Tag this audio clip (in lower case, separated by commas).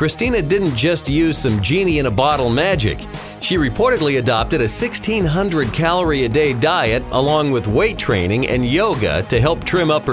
music, speech